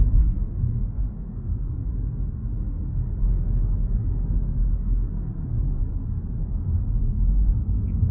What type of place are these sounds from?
car